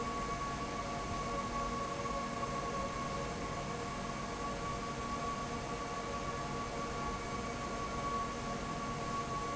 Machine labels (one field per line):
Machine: fan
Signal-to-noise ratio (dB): -6 dB